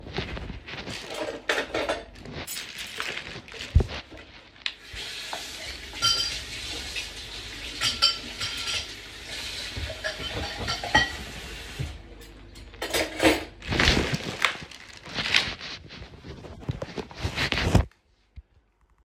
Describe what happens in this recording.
I took cutlery, plate and washed them, put them to dry, steped on a plastic bag